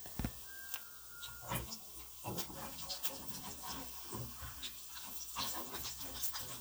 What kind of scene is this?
kitchen